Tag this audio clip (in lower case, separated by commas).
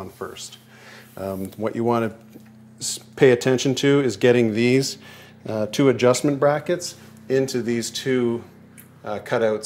speech